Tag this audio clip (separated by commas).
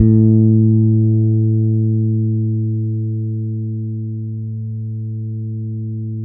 Plucked string instrument, Musical instrument, Guitar, Music, Bass guitar